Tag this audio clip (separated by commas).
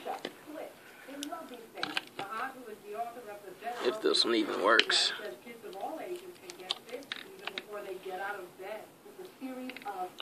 Speech